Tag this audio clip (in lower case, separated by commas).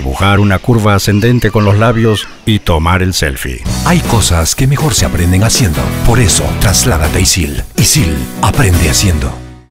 music, speech